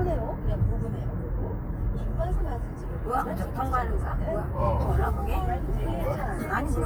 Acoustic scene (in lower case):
car